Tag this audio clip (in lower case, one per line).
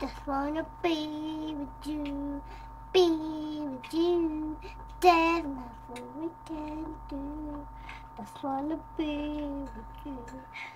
child singing
music